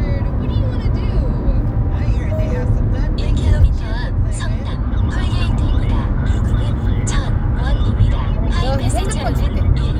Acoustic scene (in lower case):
car